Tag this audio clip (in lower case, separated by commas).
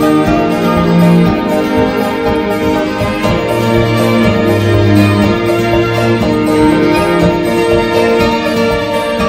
music, theme music